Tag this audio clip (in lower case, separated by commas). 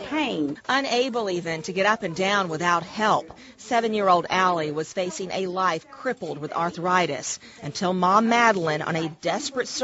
speech